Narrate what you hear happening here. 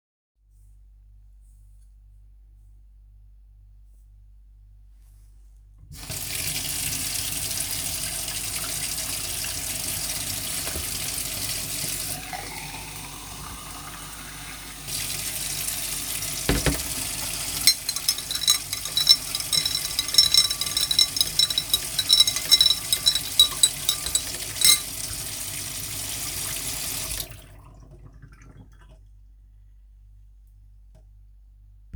Water running in the sink while stirring a spoon in a glass.